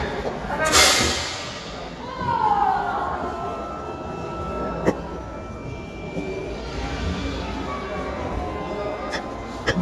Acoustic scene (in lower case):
crowded indoor space